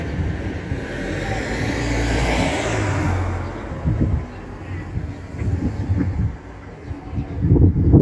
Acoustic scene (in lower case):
residential area